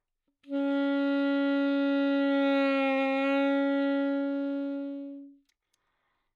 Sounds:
music
wind instrument
musical instrument

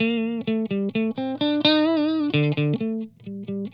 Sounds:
plucked string instrument
electric guitar
music
guitar
musical instrument

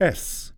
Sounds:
human voice
man speaking
speech

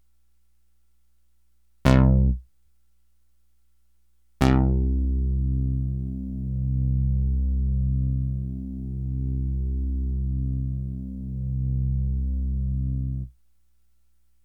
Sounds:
keyboard (musical)
musical instrument
music

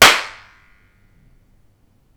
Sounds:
clapping
hands

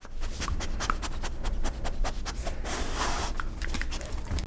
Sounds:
animal
dog
pets

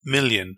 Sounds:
speech
man speaking
human voice

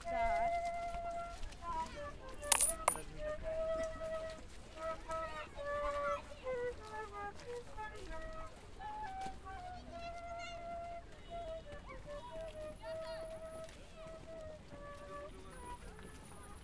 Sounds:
coin (dropping)
home sounds

